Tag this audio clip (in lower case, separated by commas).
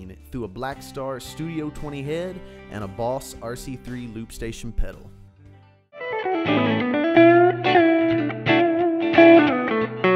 electric guitar, guitar, strum, musical instrument, music, speech, plucked string instrument